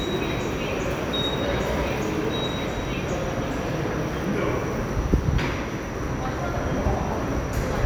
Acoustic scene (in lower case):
subway station